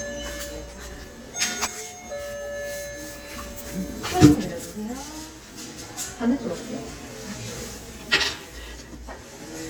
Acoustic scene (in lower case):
crowded indoor space